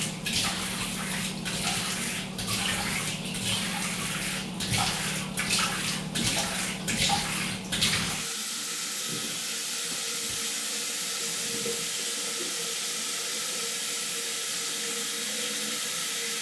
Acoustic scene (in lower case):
restroom